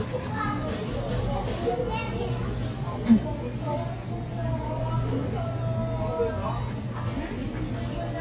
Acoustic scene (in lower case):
crowded indoor space